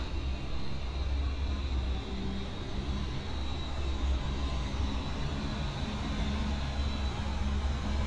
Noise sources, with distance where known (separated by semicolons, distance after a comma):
large-sounding engine, near